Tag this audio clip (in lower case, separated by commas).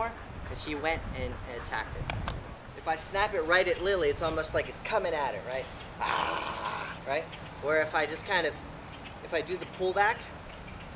outside, rural or natural, speech